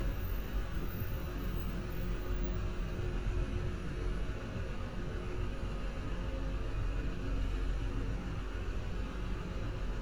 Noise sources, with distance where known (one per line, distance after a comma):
engine of unclear size, near